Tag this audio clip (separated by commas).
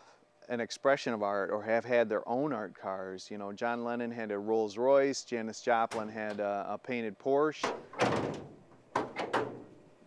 Speech